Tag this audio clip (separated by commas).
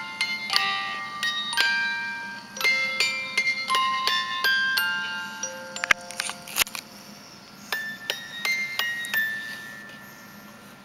Music